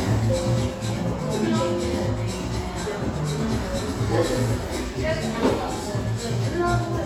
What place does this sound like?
cafe